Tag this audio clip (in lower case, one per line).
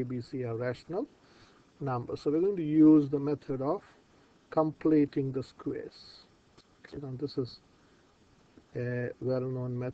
speech